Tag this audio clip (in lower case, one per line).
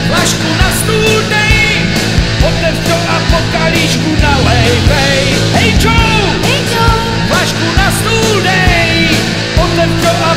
music